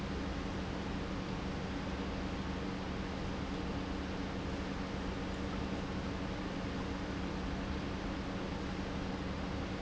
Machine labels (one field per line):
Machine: pump